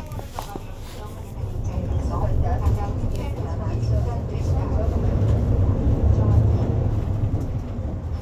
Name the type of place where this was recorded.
bus